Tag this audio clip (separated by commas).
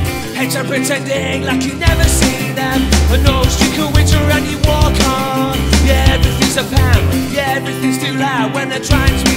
Music